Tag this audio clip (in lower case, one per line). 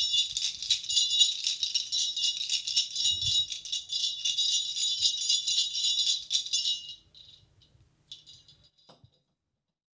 music